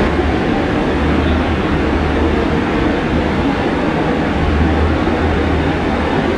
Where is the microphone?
on a subway train